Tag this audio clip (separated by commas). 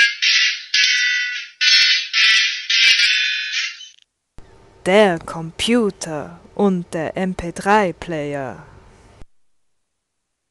Speech